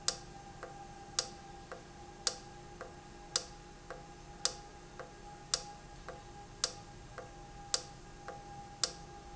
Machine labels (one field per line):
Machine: valve